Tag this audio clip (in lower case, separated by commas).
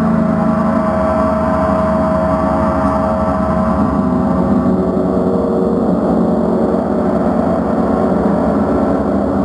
gong